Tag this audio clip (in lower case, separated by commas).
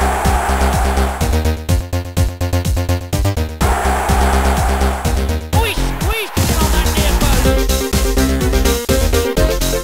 music